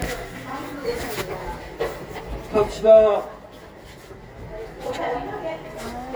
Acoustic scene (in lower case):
elevator